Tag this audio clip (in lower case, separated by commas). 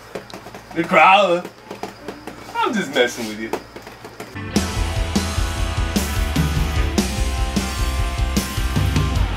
speech, music